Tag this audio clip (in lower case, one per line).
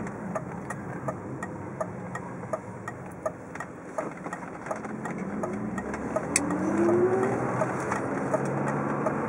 car
vehicle